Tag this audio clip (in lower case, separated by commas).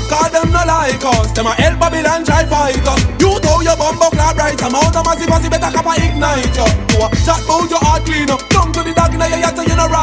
music, exciting music